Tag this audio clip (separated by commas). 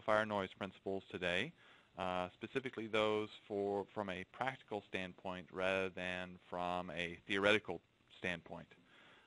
Speech